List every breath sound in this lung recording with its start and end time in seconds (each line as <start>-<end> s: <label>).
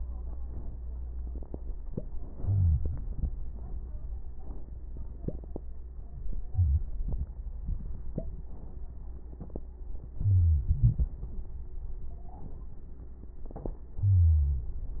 2.38-2.98 s: wheeze
6.46-6.96 s: inhalation
10.14-11.11 s: inhalation
10.14-11.11 s: wheeze
13.98-14.79 s: inhalation
13.98-14.79 s: wheeze